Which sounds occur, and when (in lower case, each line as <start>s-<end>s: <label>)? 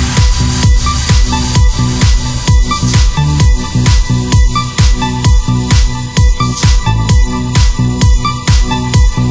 0.0s-9.3s: music